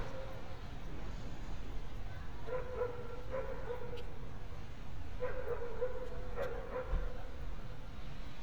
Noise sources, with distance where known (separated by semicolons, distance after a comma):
dog barking or whining, far